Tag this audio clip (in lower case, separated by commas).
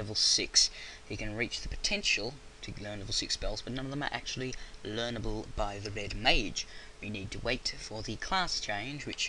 speech